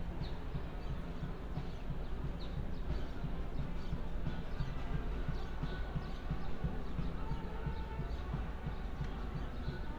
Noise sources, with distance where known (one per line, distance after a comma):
music from a fixed source, far